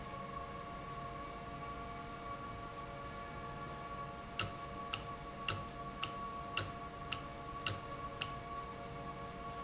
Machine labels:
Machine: valve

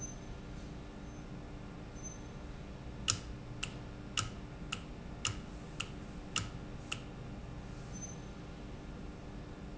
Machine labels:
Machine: valve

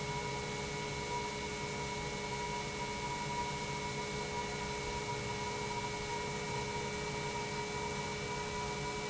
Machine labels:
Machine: pump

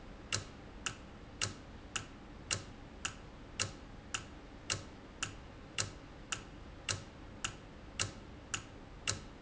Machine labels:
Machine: valve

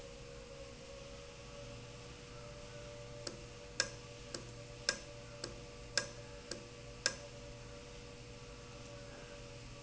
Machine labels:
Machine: valve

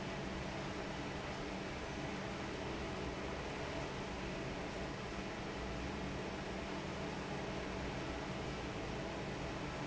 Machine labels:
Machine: fan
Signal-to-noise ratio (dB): 0 dB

